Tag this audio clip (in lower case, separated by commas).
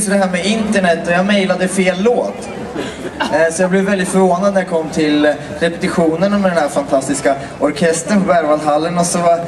speech